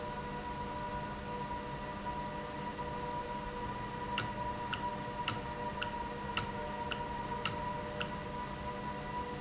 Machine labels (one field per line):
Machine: valve